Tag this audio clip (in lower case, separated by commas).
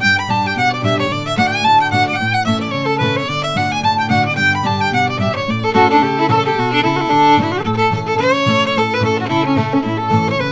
music, fiddle, musical instrument